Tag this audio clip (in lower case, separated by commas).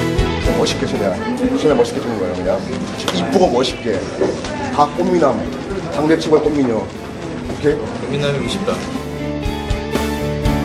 speech, music